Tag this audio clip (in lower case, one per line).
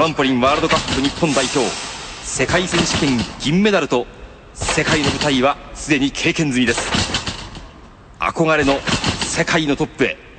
speech